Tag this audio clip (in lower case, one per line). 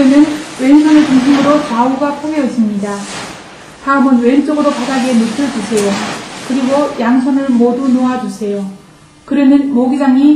speech